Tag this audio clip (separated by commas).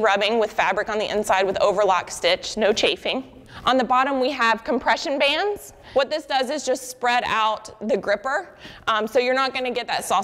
Speech